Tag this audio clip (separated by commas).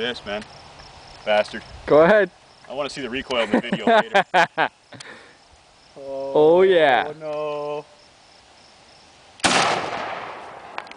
Speech